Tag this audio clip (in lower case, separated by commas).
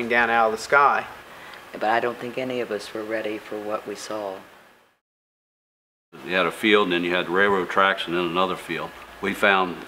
speech